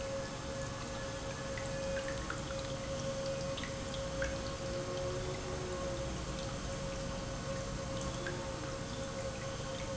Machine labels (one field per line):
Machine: pump